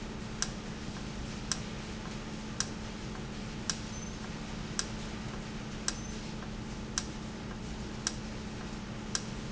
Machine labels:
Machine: valve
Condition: normal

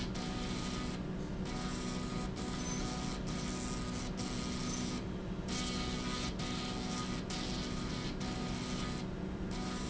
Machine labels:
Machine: slide rail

